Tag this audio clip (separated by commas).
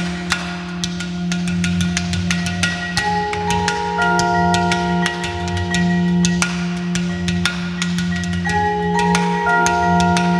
Percussion, Musical instrument, Music